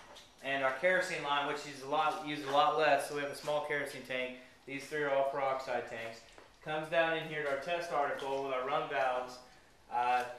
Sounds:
Speech

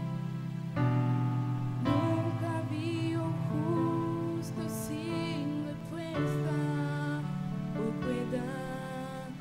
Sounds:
Music

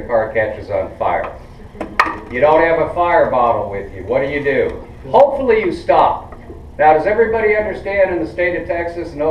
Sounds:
Speech

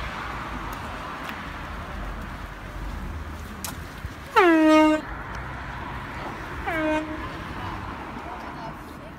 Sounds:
honking

